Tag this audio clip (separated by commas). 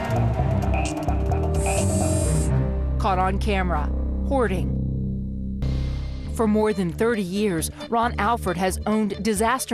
Speech, Music